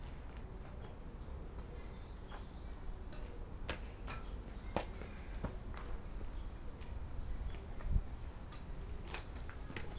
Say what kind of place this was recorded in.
park